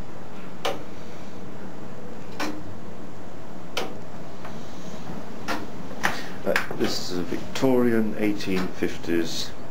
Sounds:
Speech

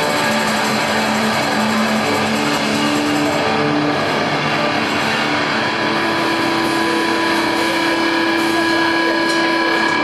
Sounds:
Music

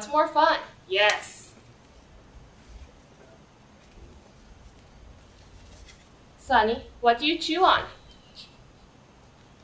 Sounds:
Speech

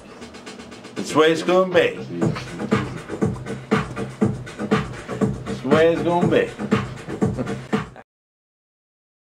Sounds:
Techno, Electronic music, Music, Speech

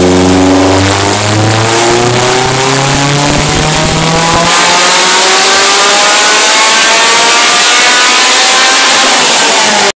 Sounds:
Car, Vehicle

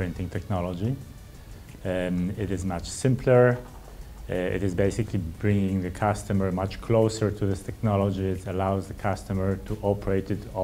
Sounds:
Speech, Music

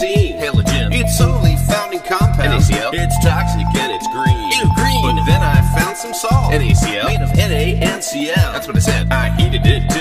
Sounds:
Music

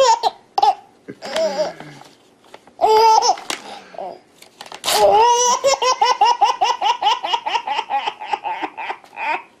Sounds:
baby laughter

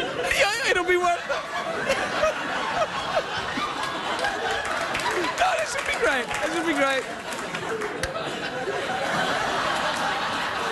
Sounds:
Speech

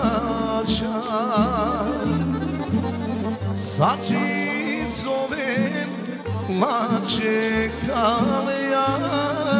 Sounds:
Music

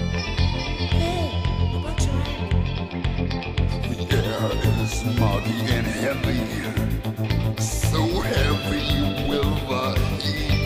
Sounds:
Music, Speech

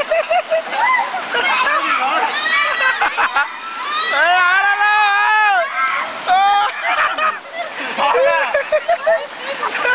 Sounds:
Speech

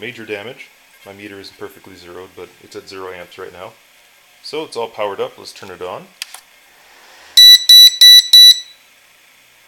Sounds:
inside a small room, Speech

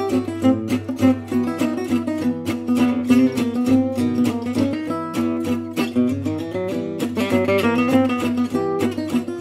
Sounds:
Guitar, Music, Acoustic guitar, Musical instrument

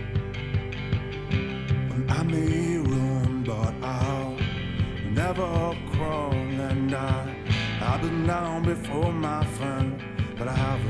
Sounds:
Music

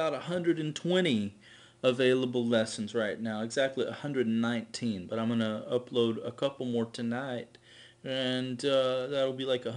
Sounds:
Speech

